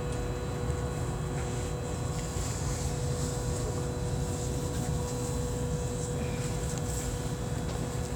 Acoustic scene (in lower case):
subway train